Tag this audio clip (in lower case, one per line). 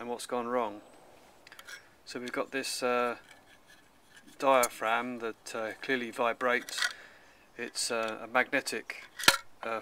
speech